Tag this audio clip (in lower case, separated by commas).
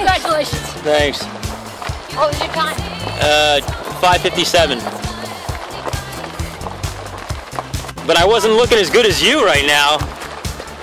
run, speech, music